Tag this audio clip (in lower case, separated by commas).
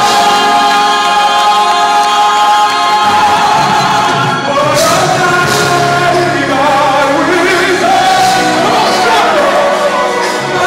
choir, music, male singing